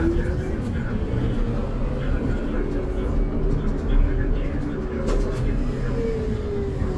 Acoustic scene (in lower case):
bus